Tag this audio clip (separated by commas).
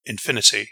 Human voice, Male speech, Speech